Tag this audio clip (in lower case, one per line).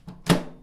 domestic sounds
microwave oven